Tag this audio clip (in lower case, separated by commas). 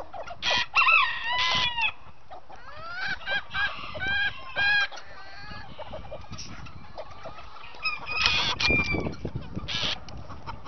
chicken, livestock, bird